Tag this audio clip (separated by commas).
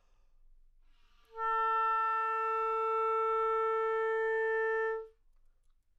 Musical instrument, Music, woodwind instrument